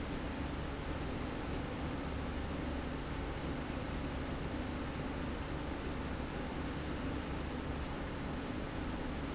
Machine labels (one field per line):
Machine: slide rail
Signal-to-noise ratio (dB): -6 dB